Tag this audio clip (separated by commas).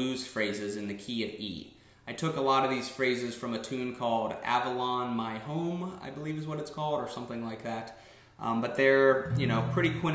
Speech, Music